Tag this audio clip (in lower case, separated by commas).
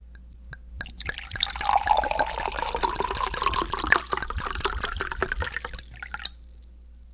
fill (with liquid), liquid